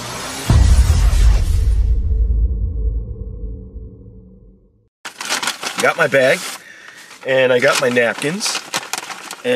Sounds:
speech
music

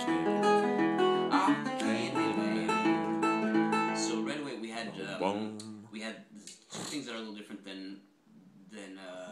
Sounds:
acoustic guitar
plucked string instrument
strum
music
musical instrument
speech
guitar

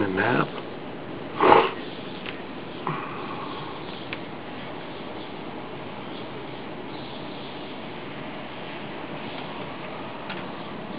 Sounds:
speech

